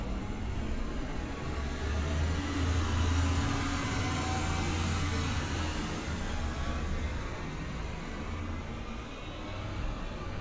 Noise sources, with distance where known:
engine of unclear size

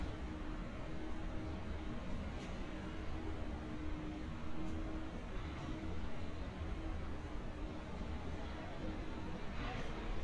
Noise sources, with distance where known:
engine of unclear size

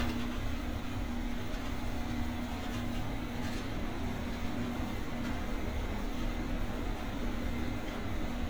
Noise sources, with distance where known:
engine of unclear size, near
dog barking or whining, far

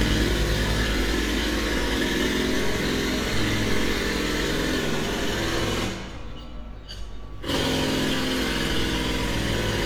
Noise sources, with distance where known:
jackhammer, near

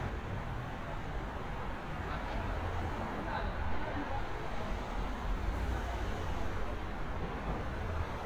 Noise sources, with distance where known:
medium-sounding engine, near
person or small group talking

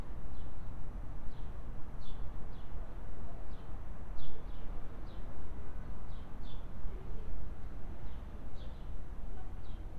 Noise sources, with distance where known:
background noise

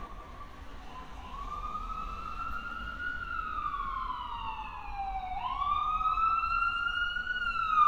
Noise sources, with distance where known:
siren, near

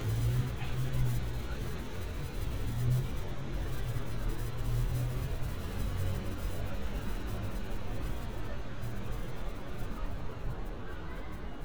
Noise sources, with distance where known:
engine of unclear size

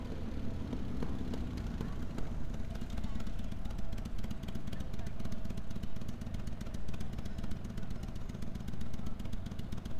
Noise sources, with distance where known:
small-sounding engine, near

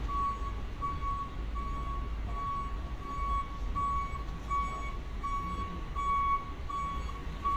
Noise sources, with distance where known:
reverse beeper, near

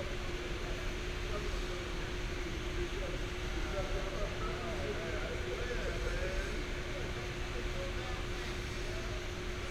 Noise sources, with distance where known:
unidentified human voice

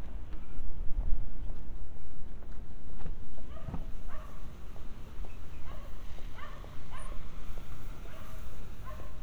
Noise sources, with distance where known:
dog barking or whining, far

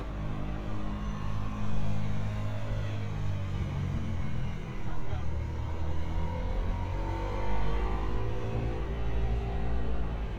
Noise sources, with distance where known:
medium-sounding engine, far
unidentified human voice, near

